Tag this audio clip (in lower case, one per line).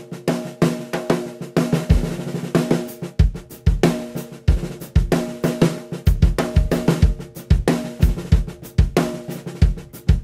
playing snare drum